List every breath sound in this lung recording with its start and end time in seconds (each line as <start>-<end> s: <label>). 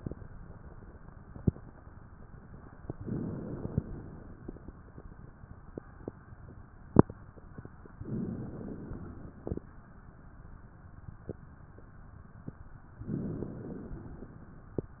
2.98-3.78 s: inhalation
3.80-4.61 s: exhalation
8.03-8.82 s: inhalation
8.86-9.68 s: exhalation
13.05-13.95 s: inhalation
13.95-14.76 s: exhalation